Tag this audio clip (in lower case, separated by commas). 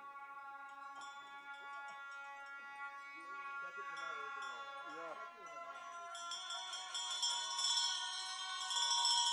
music, speech, outside, rural or natural